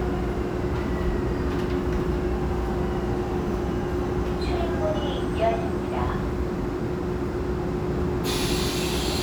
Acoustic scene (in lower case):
subway train